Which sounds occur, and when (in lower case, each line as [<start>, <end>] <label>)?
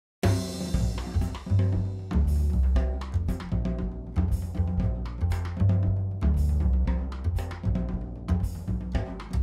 [0.21, 9.42] music